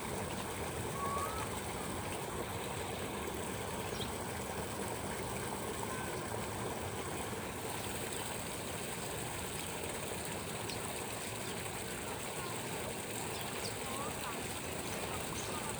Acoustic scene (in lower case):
park